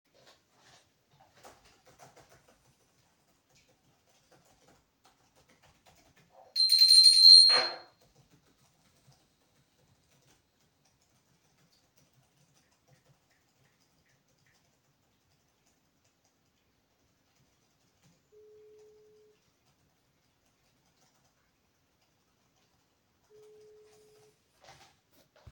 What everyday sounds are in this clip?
keyboard typing, bell ringing, phone ringing